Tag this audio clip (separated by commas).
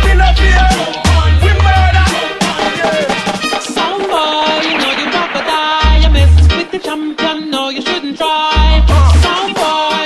Music